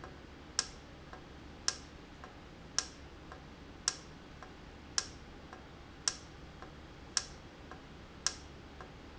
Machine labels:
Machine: valve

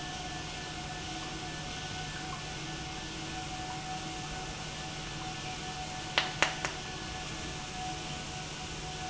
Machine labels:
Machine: pump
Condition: normal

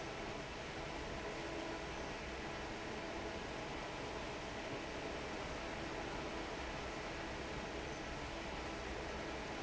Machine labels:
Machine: fan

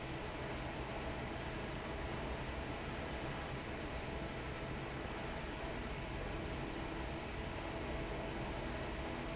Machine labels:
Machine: fan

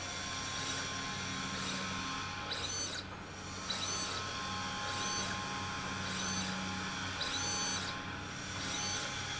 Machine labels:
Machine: slide rail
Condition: abnormal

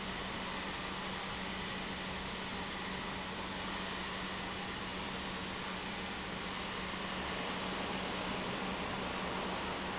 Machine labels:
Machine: pump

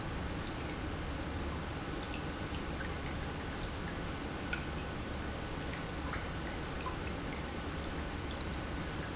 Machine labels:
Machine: pump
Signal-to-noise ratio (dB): -6 dB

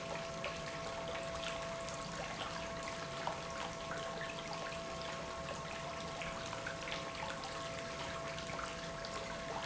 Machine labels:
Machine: pump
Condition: normal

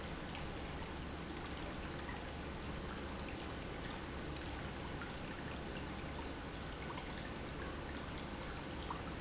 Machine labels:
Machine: pump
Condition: abnormal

